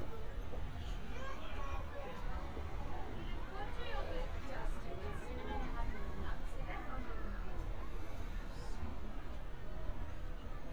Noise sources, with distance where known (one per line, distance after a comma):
person or small group talking, far